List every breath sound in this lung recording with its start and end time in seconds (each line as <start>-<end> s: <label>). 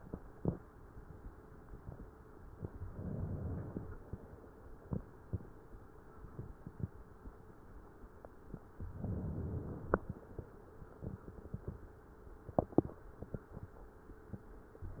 2.74-3.91 s: inhalation
8.82-10.21 s: inhalation
14.83-15.00 s: inhalation